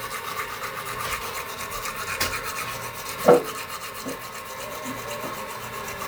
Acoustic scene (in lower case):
restroom